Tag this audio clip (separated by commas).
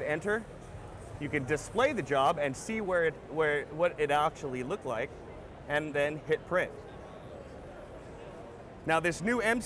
Speech